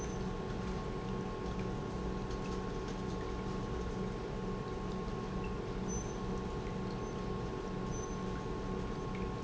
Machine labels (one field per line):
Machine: pump